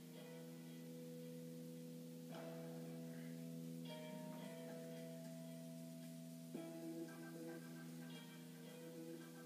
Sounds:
Music

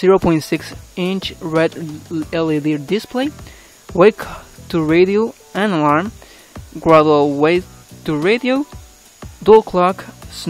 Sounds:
Speech, Music

